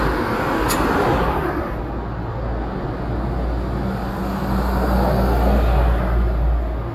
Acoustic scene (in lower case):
street